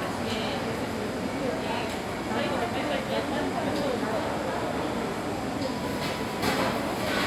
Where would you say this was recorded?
in a crowded indoor space